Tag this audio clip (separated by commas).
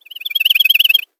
tweet, bird call, Bird, Animal, Wild animals